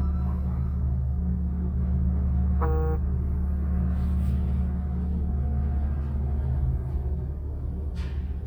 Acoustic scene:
elevator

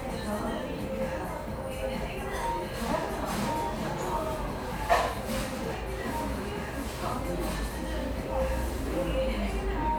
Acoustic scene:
cafe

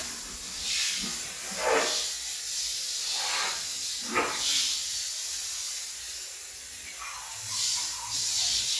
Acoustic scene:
restroom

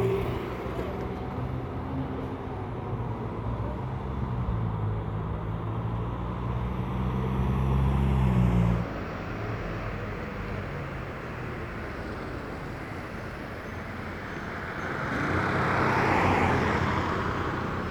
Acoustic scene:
street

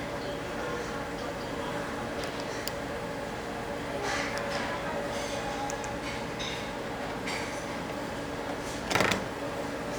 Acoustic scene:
restaurant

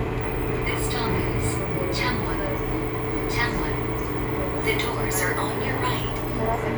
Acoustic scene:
subway train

